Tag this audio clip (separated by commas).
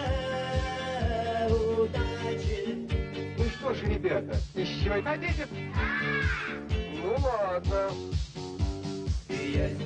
Music, Speech